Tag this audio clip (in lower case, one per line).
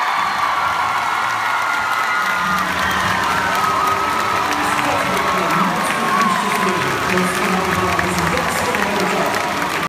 speech